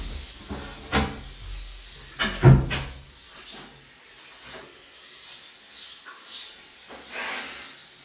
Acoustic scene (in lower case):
restroom